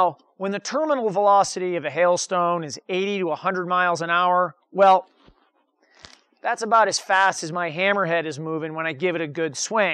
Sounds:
speech

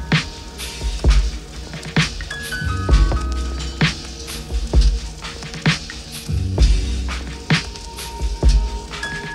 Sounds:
music, inside a small room

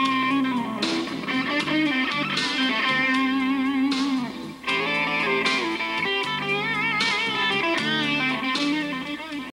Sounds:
plucked string instrument, guitar, electric guitar, musical instrument, music

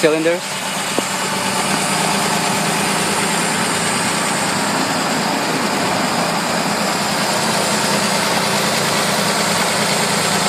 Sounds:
speech, outside, urban or man-made, engine, car, idling, vehicle

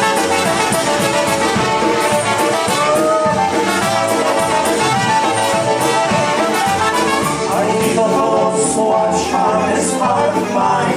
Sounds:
music

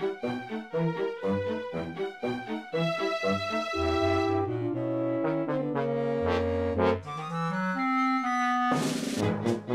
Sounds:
music

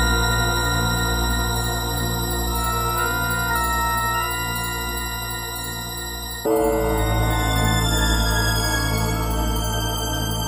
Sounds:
music

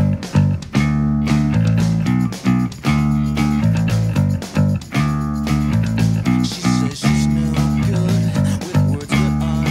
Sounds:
plucked string instrument, musical instrument, bass guitar, guitar, playing bass guitar

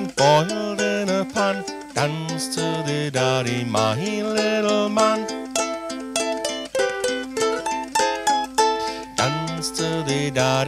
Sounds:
music

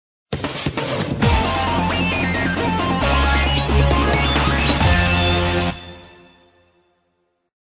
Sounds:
music

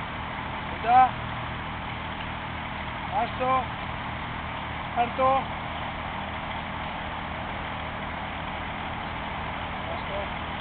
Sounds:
speech

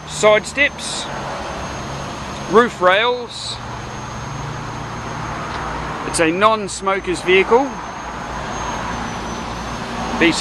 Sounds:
car, vehicle

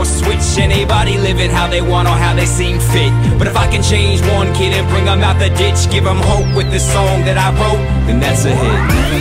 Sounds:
rhythm and blues, music

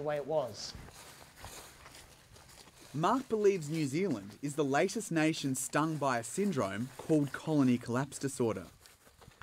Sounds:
outside, rural or natural, speech, inside a small room

